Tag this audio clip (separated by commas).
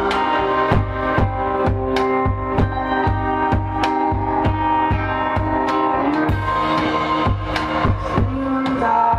Singing, Music